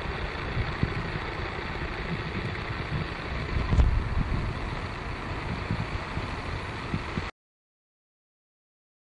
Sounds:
inside a small room, Wind

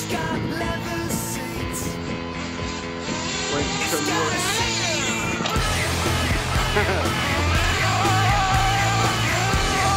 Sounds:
Music, Speech

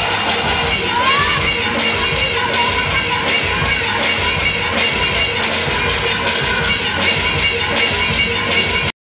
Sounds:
Music, Techno, Electronic music, Soundtrack music

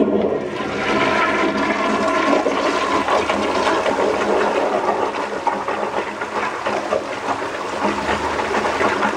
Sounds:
Toilet flush, Water

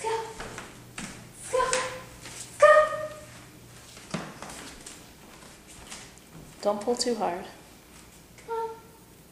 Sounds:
Speech

